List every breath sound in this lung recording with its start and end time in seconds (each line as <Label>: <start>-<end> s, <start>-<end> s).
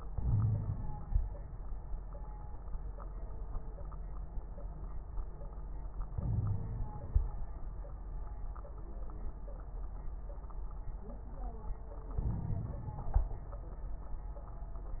Inhalation: 0.08-1.13 s, 6.15-7.25 s, 12.15-13.36 s
Wheeze: 0.17-0.76 s, 6.15-6.66 s
Crackles: 12.15-13.36 s